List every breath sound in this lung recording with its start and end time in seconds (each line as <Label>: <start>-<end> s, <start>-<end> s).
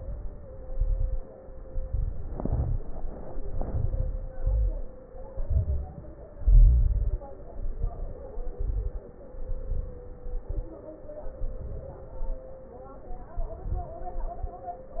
Inhalation: 0.62-1.23 s, 3.33-4.33 s, 5.34-6.08 s, 7.51-8.21 s, 9.33-10.24 s, 11.17-12.03 s, 13.34-14.08 s
Exhalation: 0.00-0.59 s, 1.58-2.83 s, 4.37-5.11 s, 6.40-7.24 s, 8.38-9.08 s, 10.24-10.83 s, 12.18-12.77 s, 14.14-14.65 s
Crackles: 0.00-0.59 s, 0.62-1.23 s, 1.58-2.83 s, 3.33-4.33 s, 4.37-5.11 s, 5.34-6.08 s, 6.40-7.24 s, 7.51-8.21 s, 8.38-9.08 s, 9.33-10.24 s, 10.26-10.85 s, 11.17-12.03 s, 12.18-12.77 s, 13.34-14.08 s, 14.14-14.65 s